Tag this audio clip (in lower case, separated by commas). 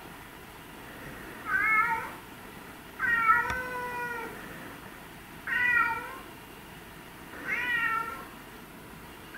cat hissing